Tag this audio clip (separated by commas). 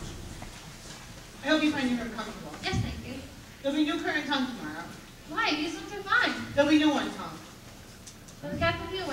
Speech